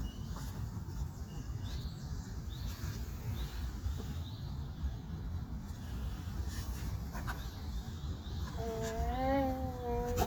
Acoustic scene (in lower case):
park